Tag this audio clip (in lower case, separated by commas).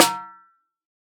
music, percussion, drum, snare drum, musical instrument